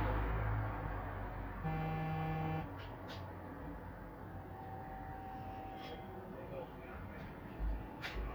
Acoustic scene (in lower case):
street